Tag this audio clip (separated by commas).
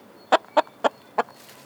livestock, Chicken, Fowl, Animal